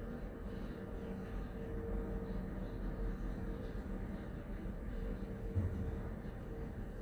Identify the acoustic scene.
elevator